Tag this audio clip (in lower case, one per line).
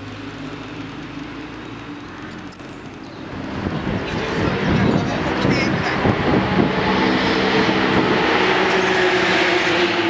speech
vehicle
car